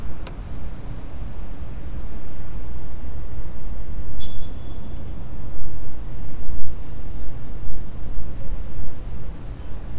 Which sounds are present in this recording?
engine of unclear size, car horn